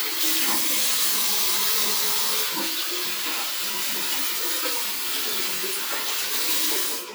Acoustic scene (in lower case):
restroom